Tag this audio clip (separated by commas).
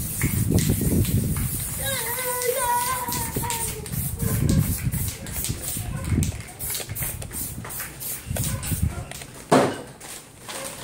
Speech